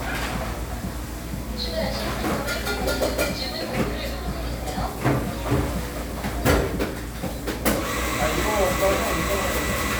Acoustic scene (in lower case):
cafe